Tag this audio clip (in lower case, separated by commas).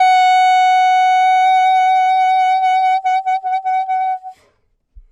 woodwind instrument, music, musical instrument